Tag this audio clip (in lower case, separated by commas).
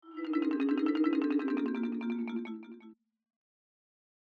marimba, percussion, mallet percussion, musical instrument, music